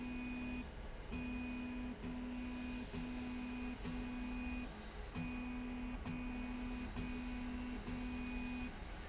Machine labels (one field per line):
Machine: slide rail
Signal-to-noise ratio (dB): 6 dB